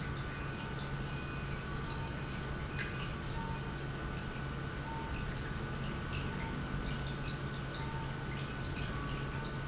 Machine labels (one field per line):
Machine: pump